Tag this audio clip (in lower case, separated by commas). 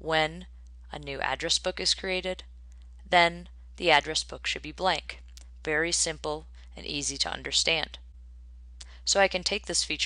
speech